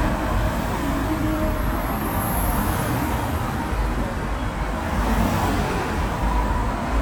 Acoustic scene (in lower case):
street